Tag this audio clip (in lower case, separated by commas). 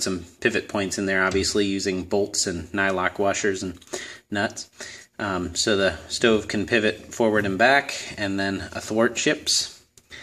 speech